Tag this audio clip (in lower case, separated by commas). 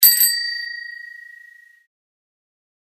alarm, bicycle bell, bicycle, bell, vehicle